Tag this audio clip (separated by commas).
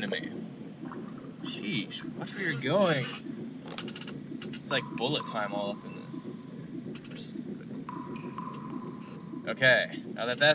Speech